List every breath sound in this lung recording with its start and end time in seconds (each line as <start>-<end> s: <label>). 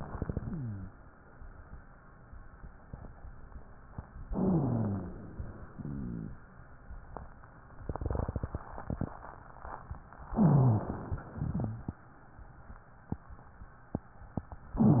4.28-5.32 s: inhalation
4.33-5.15 s: wheeze
5.33-6.55 s: exhalation
5.76-6.37 s: rhonchi
10.34-10.81 s: wheeze
10.35-11.24 s: inhalation
11.24-12.08 s: exhalation
11.52-11.85 s: wheeze